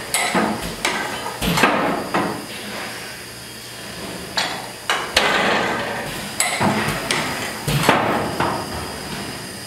A heavy door opens and closes